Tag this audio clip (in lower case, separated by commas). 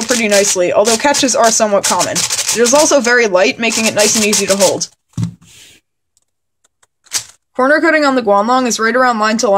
speech